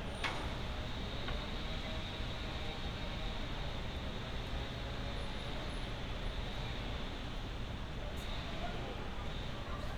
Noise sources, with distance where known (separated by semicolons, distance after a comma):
chainsaw, far